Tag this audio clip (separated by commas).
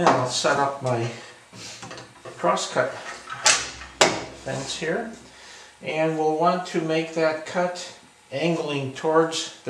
Wood